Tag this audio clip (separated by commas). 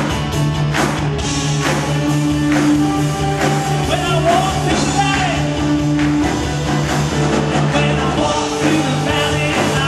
Singing, Rock and roll, Music